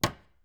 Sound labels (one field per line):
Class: cupboard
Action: closing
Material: wooden